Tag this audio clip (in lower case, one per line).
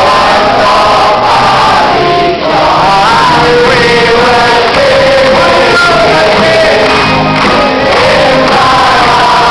music